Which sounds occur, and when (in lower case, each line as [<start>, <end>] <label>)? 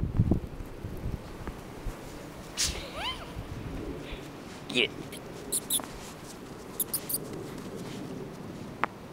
[0.00, 0.45] wind noise (microphone)
[0.00, 9.12] wind
[0.75, 1.22] wind noise (microphone)
[1.39, 1.51] tick
[2.56, 3.31] animal
[3.34, 4.03] wind noise (microphone)
[4.03, 4.31] breathing
[4.67, 4.89] male speech
[4.99, 5.14] animal
[5.48, 5.81] bird song
[5.76, 5.88] tick
[6.78, 7.18] bird song
[7.46, 7.60] walk
[7.76, 8.00] walk
[8.78, 8.87] tick